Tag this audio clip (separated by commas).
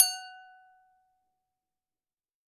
Glass